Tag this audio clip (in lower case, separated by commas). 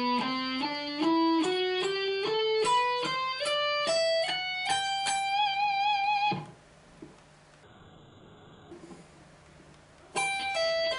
guitar, musical instrument, music, electric guitar